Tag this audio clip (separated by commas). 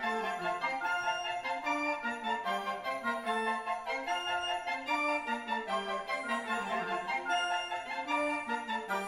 Music